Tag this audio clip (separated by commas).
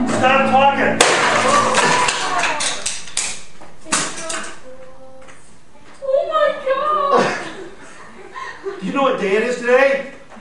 Music, Speech